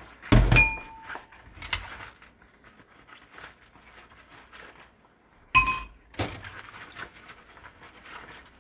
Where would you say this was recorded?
in a kitchen